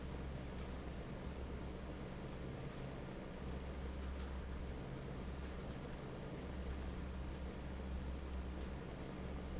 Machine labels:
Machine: fan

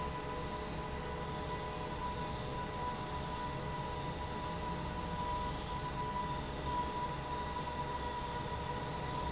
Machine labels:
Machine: fan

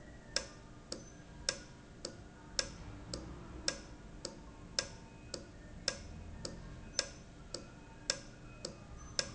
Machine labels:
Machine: valve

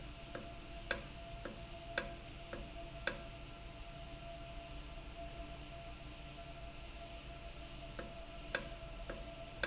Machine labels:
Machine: valve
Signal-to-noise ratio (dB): 6 dB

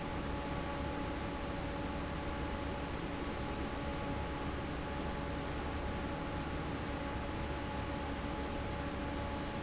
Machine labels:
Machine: fan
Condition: normal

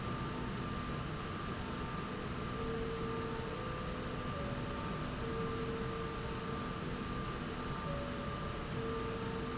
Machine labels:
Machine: slide rail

